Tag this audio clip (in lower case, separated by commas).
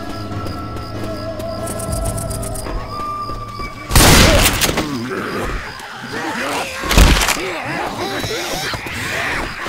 speech